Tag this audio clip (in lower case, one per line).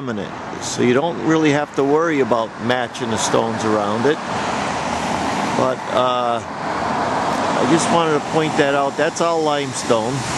speech
outside, urban or man-made